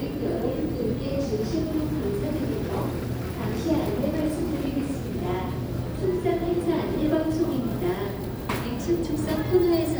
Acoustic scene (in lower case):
crowded indoor space